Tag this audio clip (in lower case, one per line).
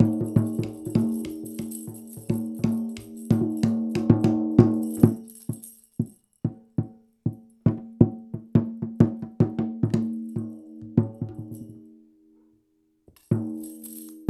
percussion
musical instrument
tambourine
music